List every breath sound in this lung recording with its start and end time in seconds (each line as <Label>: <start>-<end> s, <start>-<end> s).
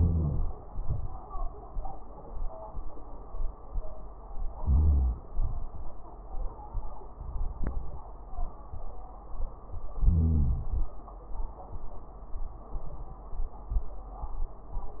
Inhalation: 0.00-0.61 s, 4.57-5.31 s, 10.02-10.96 s
Exhalation: 0.66-1.27 s, 5.30-6.04 s
Crackles: 0.00-0.59 s, 0.66-1.25 s, 4.52-5.26 s, 5.30-6.04 s, 10.02-10.96 s